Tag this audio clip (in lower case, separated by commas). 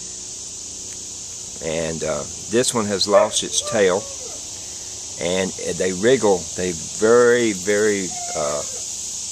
hiss, steam